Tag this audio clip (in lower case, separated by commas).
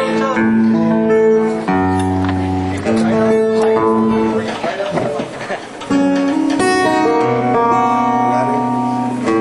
music, musical instrument, pizzicato